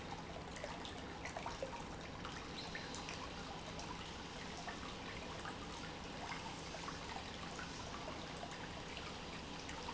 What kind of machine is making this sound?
pump